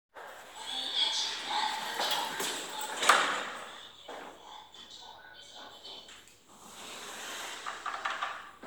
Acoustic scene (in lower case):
elevator